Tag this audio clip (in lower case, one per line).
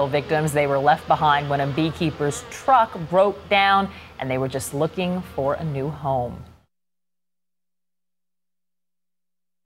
speech